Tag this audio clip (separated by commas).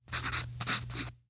Writing, Domestic sounds